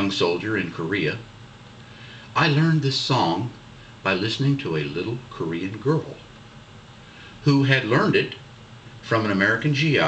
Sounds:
speech

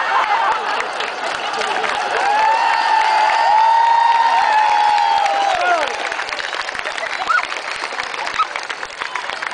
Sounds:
speech

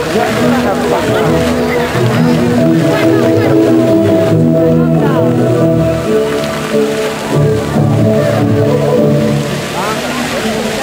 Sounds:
music
speech

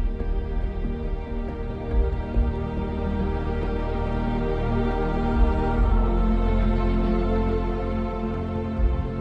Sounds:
tender music
music

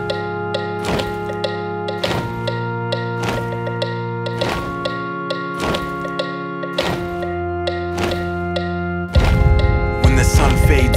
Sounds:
music

